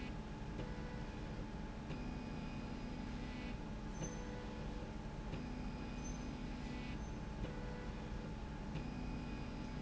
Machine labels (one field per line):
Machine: slide rail